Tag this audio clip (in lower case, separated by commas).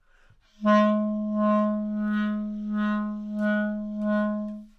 musical instrument, music, wind instrument